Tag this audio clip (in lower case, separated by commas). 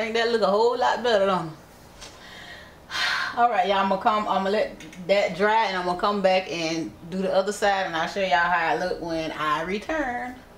speech